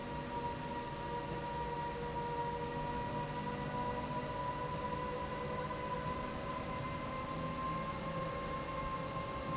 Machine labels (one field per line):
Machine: slide rail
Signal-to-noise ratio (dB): -6 dB